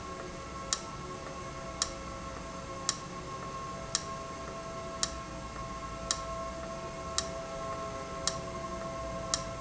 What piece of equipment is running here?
valve